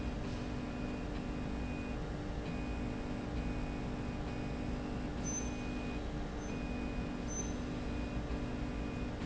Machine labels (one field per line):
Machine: slide rail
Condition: normal